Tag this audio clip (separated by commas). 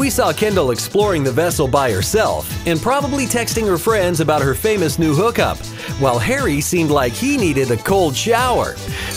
Speech, Music